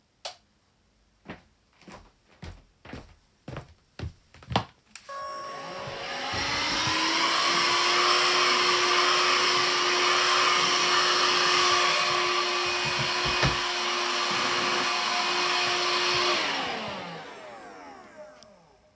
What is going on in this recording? I flicked the light switch, stepped over to a handheld vacuum cleaner and cleaned some objects.